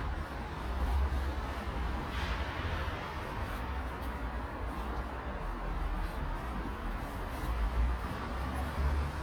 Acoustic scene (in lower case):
residential area